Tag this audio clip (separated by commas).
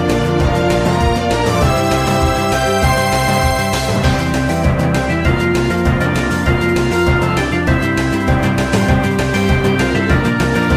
Video game music, Music